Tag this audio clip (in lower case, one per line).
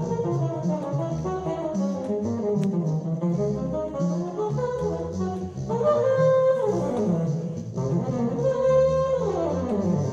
playing bassoon